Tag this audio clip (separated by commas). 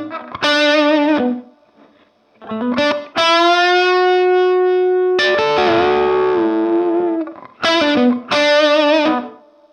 Music, Distortion